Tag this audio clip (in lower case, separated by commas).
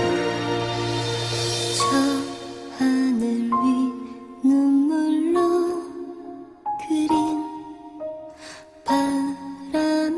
music